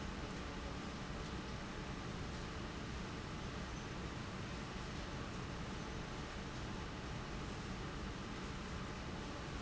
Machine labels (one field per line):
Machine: fan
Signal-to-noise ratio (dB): 0 dB